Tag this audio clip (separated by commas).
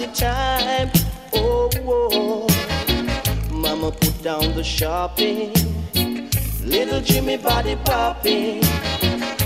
Music